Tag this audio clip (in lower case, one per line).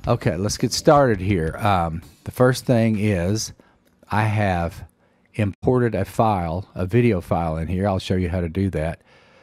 speech